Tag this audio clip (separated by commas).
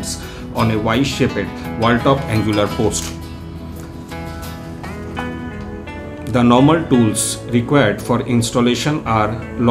Music, Speech